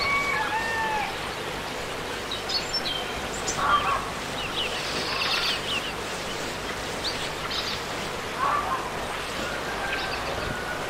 Birds tweeting and chirping